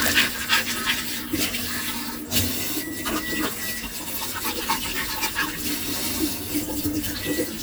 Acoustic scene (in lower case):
kitchen